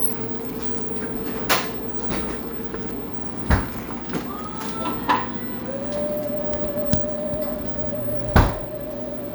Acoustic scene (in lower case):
cafe